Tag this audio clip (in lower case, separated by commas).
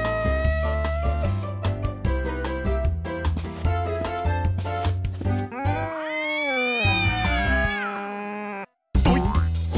music, meow